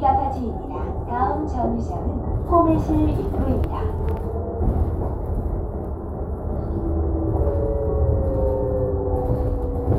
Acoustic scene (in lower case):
bus